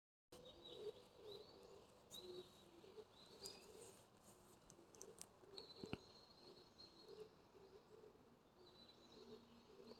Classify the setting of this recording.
park